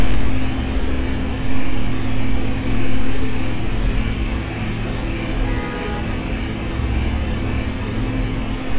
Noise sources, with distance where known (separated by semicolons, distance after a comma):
car horn, near